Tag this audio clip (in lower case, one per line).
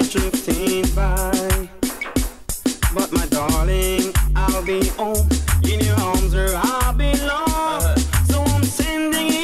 music
afrobeat